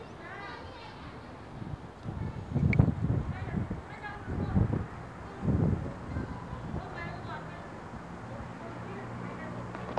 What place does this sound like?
residential area